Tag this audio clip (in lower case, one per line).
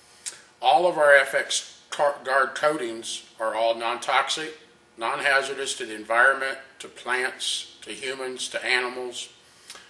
speech